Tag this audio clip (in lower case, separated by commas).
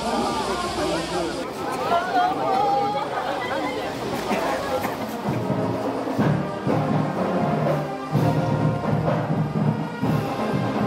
people marching